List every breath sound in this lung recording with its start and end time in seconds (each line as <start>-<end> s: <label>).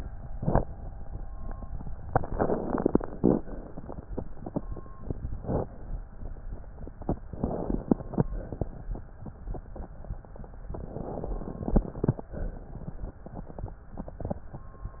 2.01-3.36 s: crackles
2.04-3.36 s: inhalation
3.36-4.29 s: exhalation
7.28-8.28 s: crackles
7.30-8.30 s: inhalation
8.30-8.75 s: exhalation
10.62-12.32 s: crackles
10.66-12.31 s: inhalation
12.31-13.21 s: exhalation